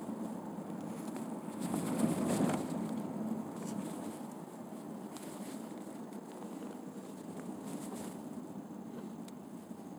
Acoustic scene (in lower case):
car